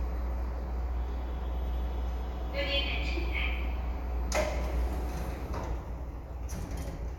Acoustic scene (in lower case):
elevator